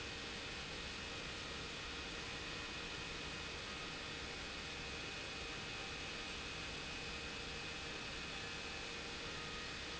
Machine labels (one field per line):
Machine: pump